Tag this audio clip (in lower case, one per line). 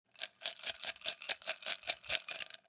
glass
rattle